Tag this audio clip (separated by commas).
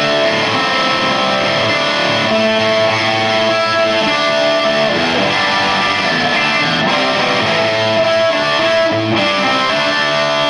Musical instrument, Electric guitar, Music, Guitar